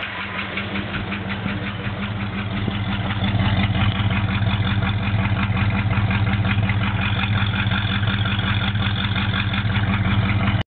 An industrial machine or generator whirring in the background and the sound coming into focus